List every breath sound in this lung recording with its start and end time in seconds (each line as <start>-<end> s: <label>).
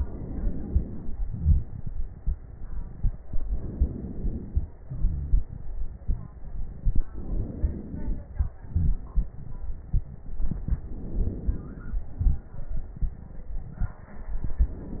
0.00-1.19 s: inhalation
1.20-3.27 s: exhalation
3.28-4.83 s: inhalation
4.83-5.42 s: wheeze
4.83-7.12 s: exhalation
7.12-8.34 s: inhalation
8.32-10.56 s: exhalation
8.32-10.56 s: crackles
10.54-12.03 s: inhalation
12.04-14.11 s: exhalation
12.04-14.11 s: crackles